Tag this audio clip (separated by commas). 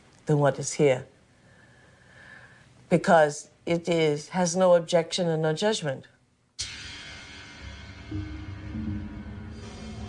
woman speaking